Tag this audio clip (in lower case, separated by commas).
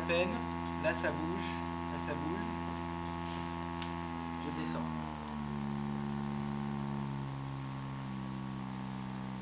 speech